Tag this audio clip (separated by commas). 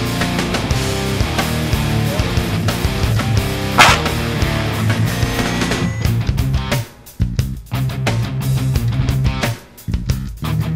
Music